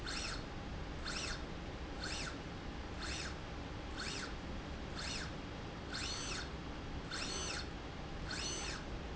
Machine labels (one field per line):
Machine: slide rail